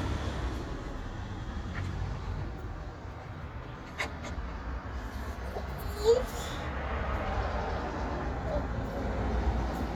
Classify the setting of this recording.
street